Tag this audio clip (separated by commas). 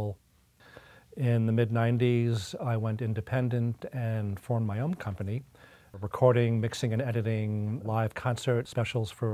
Speech